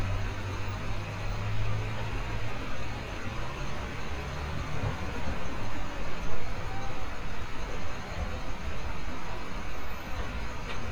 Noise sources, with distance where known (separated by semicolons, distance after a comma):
engine of unclear size, near